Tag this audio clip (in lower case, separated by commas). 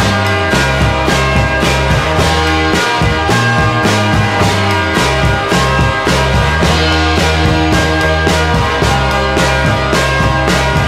music